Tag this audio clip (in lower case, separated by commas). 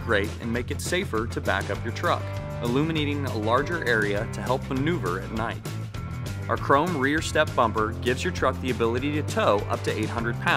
speech, music